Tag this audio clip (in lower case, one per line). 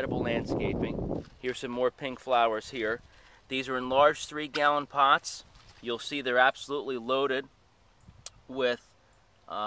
speech